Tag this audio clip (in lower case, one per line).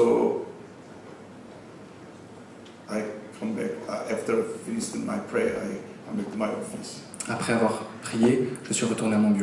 male speech
speech